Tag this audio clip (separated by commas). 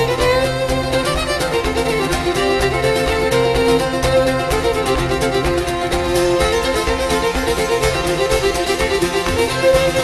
fiddle, Music, Musical instrument